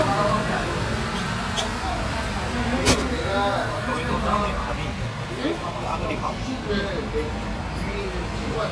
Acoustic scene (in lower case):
restaurant